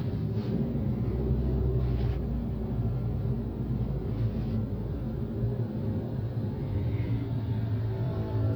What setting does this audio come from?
car